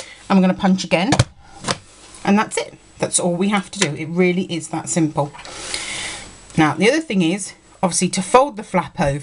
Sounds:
Speech

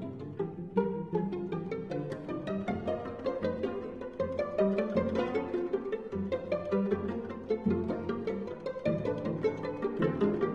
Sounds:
Musical instrument, Pizzicato, Music

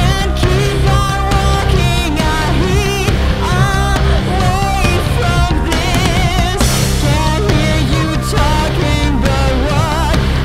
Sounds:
Singing, Music

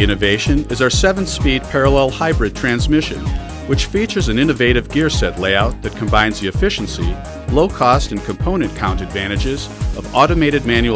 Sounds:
Speech, Music

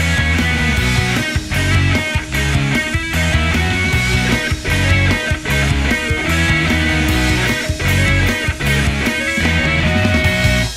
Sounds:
Music

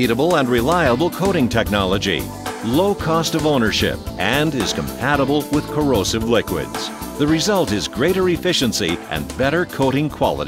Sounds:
Speech, Music

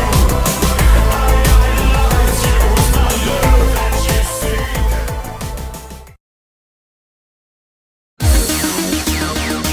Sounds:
Music, Trance music

